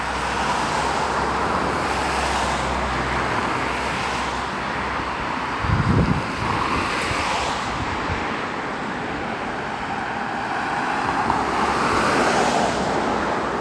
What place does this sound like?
street